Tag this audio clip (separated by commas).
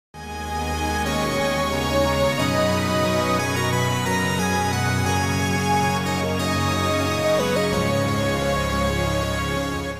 Video game music